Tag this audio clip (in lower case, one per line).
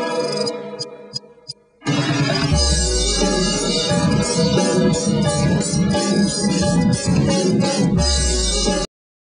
music